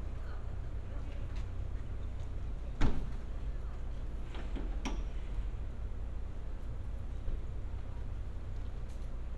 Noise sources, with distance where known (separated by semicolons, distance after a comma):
person or small group talking